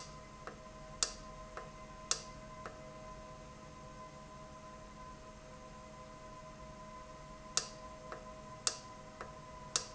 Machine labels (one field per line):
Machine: valve